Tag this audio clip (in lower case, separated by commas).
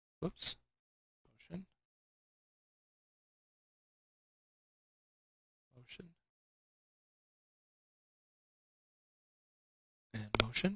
speech